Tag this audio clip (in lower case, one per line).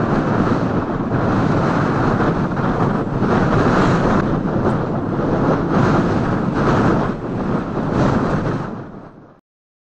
wind noise (microphone)
wind noise